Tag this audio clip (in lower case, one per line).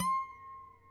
musical instrument
harp
music